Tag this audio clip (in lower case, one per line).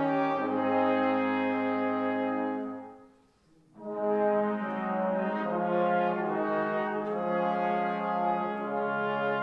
music